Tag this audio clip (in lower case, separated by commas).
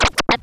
music, musical instrument, scratching (performance technique)